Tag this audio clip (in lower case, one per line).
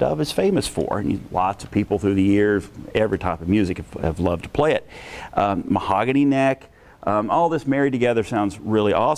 speech